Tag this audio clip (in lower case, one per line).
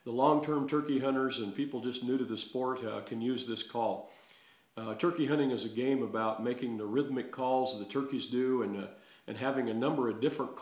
speech